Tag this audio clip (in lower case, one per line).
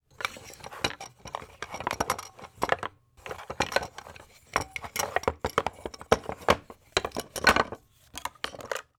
wood